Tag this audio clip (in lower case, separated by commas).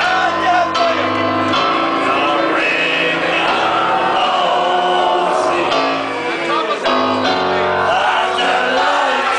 music, male singing